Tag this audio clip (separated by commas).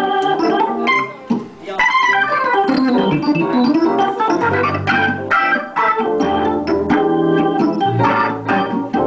Music